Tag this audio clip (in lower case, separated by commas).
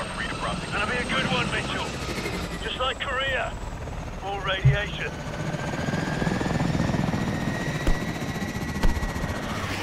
helicopter